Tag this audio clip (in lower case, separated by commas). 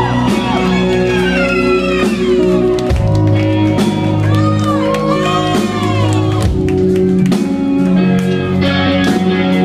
speech, music